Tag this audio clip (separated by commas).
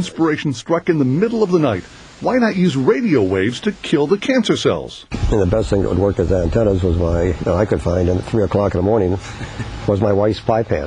Speech